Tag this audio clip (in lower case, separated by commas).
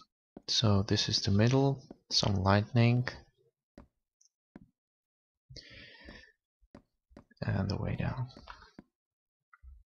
sigh, speech